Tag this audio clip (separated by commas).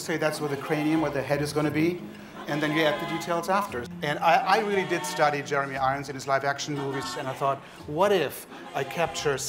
Speech, Music